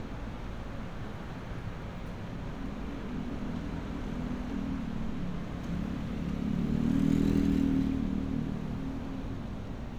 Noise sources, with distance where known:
medium-sounding engine, near

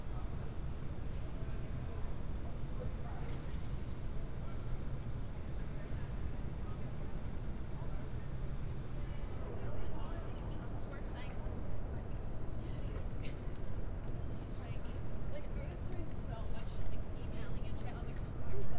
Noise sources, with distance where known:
person or small group talking

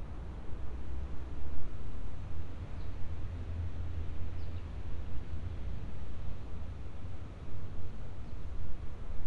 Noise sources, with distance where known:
background noise

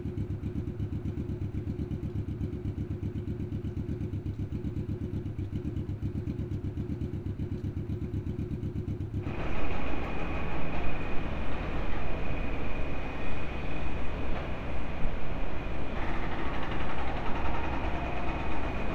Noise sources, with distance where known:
unidentified impact machinery

